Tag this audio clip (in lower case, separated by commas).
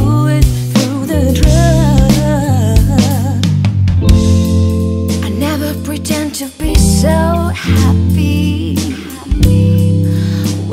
musical instrument, music, snare drum, hi-hat, drum, drum kit, percussion, cymbal, bass drum